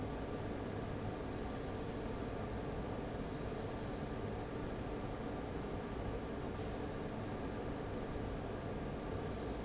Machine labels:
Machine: fan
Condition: abnormal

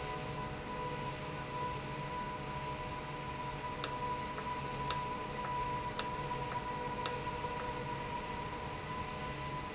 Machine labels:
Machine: valve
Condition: normal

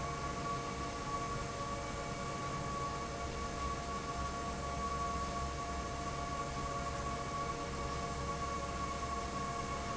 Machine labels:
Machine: fan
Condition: normal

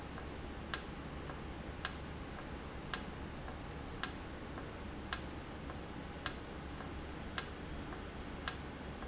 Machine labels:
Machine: valve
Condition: normal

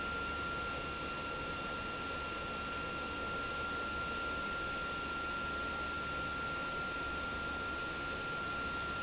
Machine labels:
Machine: pump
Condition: abnormal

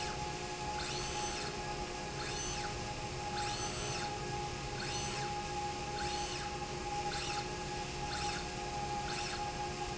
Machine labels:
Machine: slide rail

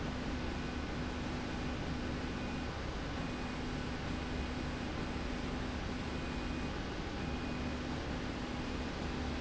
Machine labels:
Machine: slide rail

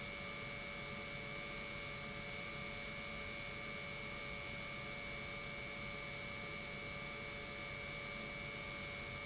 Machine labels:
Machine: pump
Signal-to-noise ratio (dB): 6 dB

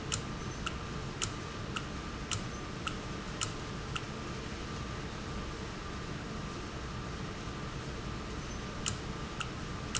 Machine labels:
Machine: valve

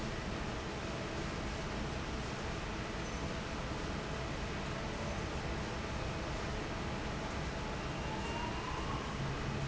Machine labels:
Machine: fan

